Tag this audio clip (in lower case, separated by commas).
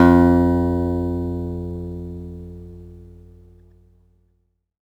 acoustic guitar, musical instrument, guitar, plucked string instrument, music